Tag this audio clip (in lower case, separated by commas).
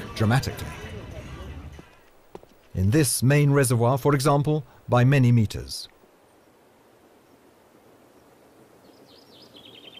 music, speech